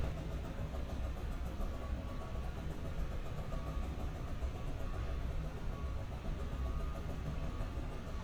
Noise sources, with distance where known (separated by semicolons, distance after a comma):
hoe ram; reverse beeper, far